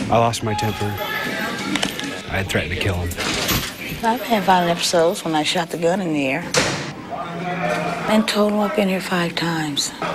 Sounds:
speech

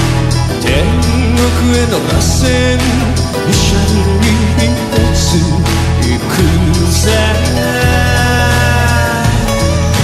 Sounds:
music, jingle (music)

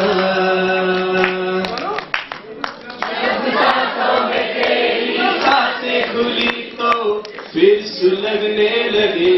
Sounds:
male singing

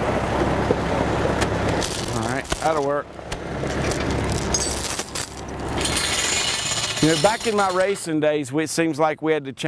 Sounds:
outside, rural or natural, vehicle, speech

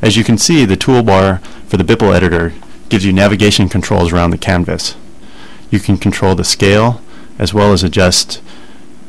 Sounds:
speech

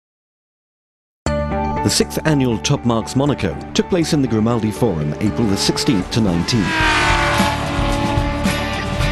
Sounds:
music, vehicle, auto racing, car, speech

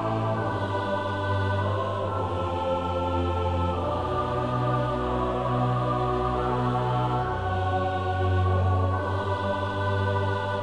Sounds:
soul music, new-age music, music

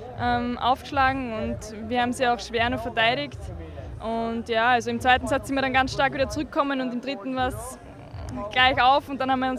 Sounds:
playing volleyball

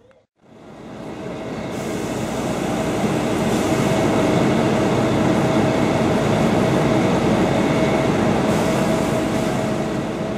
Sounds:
rail transport, railroad car, train

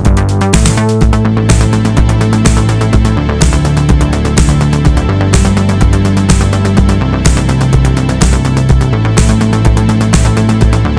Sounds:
music

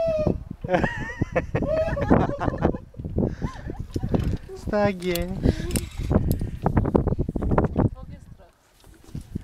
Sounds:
speech

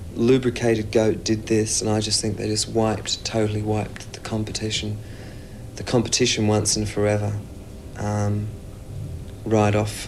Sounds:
speech

